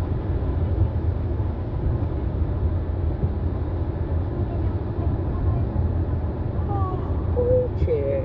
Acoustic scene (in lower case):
car